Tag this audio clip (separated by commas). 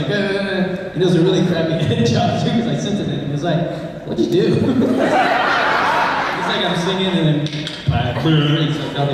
Speech